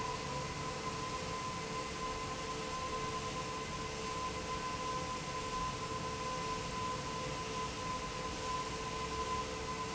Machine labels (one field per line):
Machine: fan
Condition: abnormal